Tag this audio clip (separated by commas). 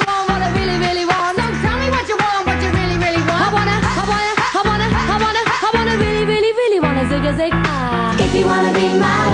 Music, Pop music